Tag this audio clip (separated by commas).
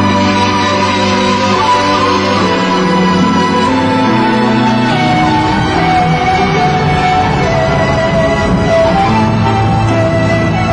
Music